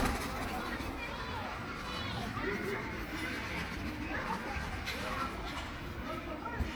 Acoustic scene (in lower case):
park